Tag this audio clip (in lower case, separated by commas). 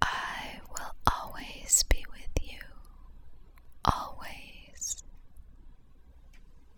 human voice, whispering